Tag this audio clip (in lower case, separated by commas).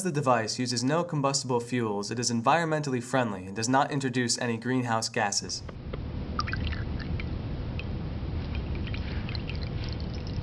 speech, water